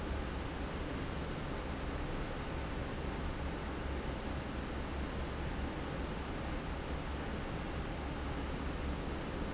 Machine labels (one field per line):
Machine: fan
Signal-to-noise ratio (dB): -6 dB